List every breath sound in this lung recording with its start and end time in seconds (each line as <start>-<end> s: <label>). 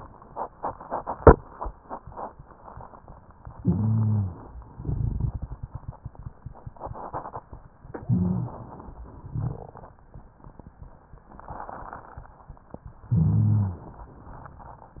3.59-4.57 s: inhalation
3.60-4.36 s: rhonchi
4.71-7.62 s: exhalation
7.91-9.05 s: inhalation
8.05-8.49 s: rhonchi
9.03-10.00 s: exhalation
9.03-10.00 s: crackles
13.08-13.81 s: rhonchi
13.08-14.12 s: inhalation